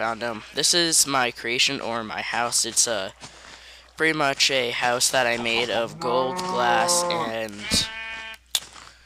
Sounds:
Speech

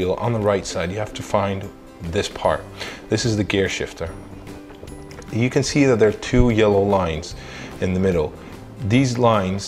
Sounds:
Speech, Music

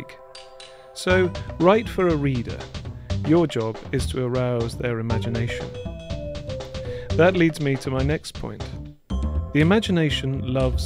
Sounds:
Music, Speech

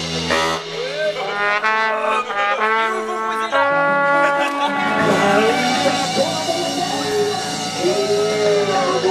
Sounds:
Speech, Music

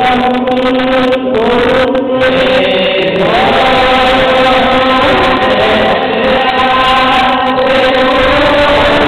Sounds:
Music, Mantra

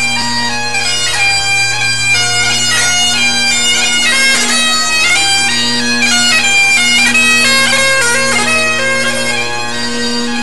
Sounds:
Bagpipes, woodwind instrument

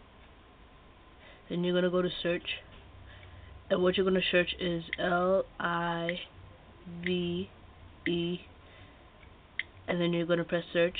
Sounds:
Speech

